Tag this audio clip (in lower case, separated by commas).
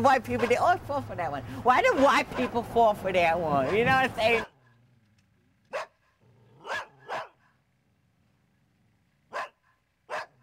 speech